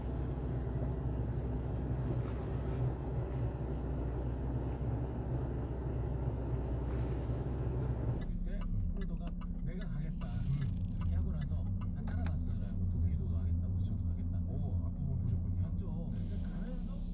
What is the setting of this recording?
car